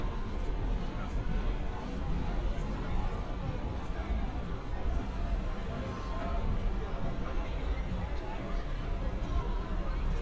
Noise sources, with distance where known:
unidentified human voice

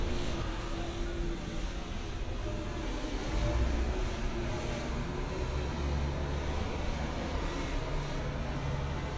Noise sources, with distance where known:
large-sounding engine, far

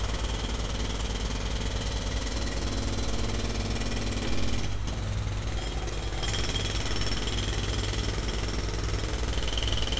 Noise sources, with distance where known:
jackhammer, near

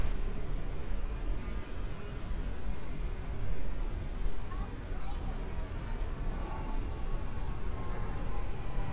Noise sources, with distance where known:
person or small group talking, far

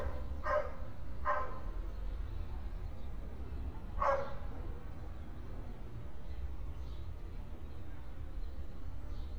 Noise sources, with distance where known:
dog barking or whining

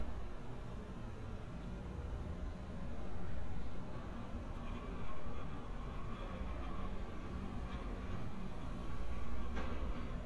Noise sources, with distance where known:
background noise

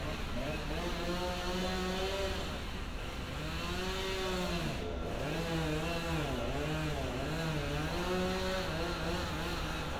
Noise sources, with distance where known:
chainsaw, far

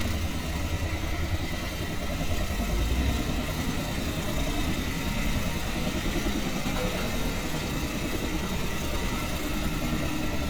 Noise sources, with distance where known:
unidentified impact machinery

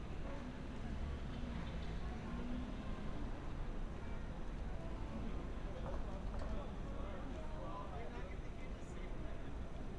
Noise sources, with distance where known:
person or small group talking

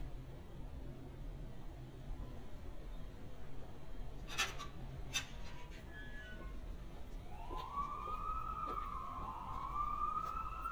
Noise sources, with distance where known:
siren, far

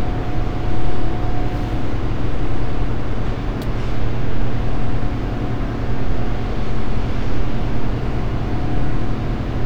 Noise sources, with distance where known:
engine of unclear size

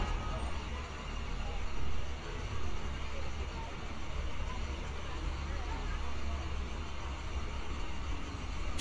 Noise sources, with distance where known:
person or small group talking

